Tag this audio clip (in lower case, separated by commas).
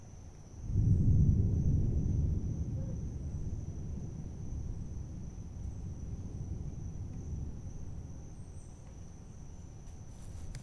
thunder, thunderstorm